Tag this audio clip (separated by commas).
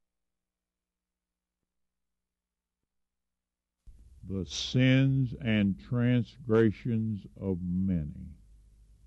Speech